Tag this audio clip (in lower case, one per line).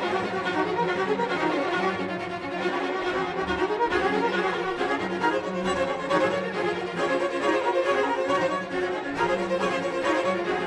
string section